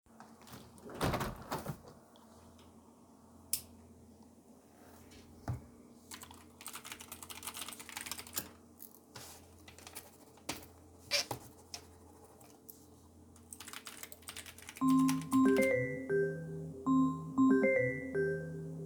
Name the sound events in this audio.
door, keyboard typing, phone ringing